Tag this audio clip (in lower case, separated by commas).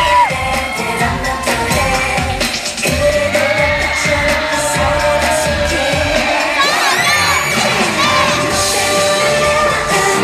music